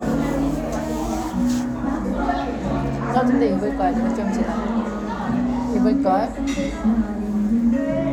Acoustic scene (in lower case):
crowded indoor space